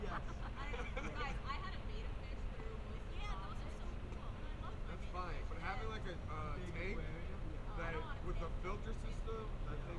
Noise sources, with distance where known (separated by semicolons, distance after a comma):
person or small group talking, near